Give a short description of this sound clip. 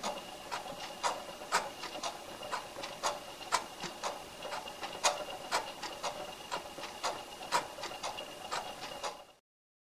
White noise and tick-tocking